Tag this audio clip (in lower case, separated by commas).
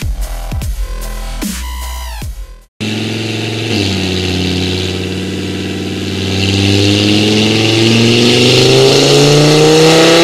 music